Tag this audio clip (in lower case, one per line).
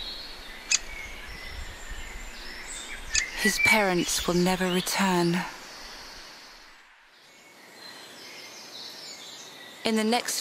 woodpecker pecking tree